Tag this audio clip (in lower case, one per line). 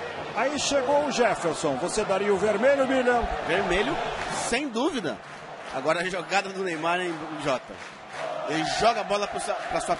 speech